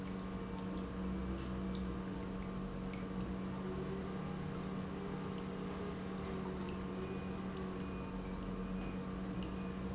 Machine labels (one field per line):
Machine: pump